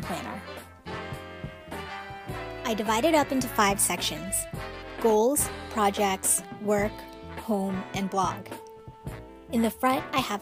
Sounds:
Speech, Music

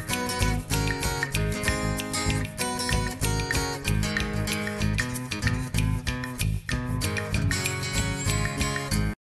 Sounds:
Musical instrument, Guitar, Music

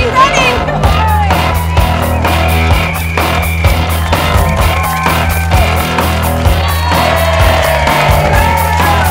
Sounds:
Crowd, Music

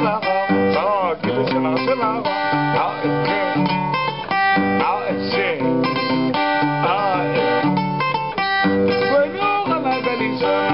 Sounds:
Music, Guitar, Strum, Tender music, Plucked string instrument, Musical instrument

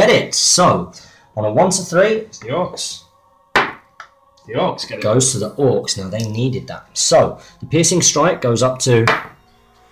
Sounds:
Speech

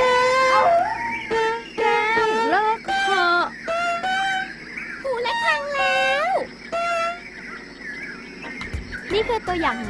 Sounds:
Speech

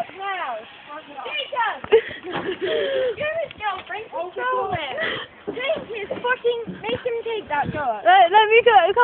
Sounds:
Speech

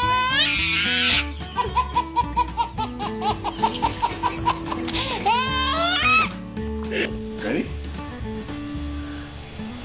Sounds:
baby laughter

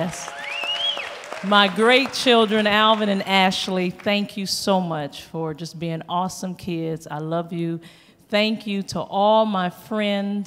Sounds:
monologue, woman speaking, Speech

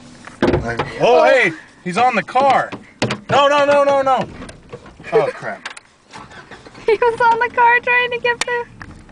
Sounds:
Vehicle, Speech, Car, Motor vehicle (road)

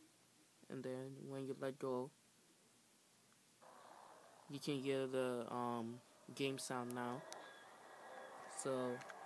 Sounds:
Speech

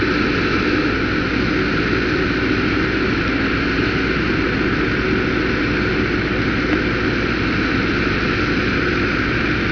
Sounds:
Vehicle, Truck

